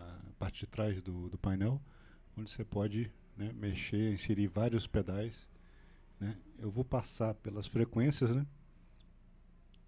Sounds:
Speech

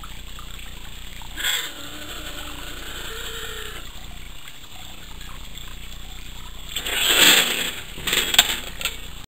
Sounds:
Caterwaul, Domestic animals, Animal, Cat

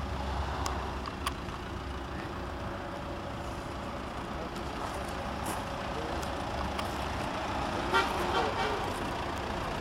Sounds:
Speech, Engine

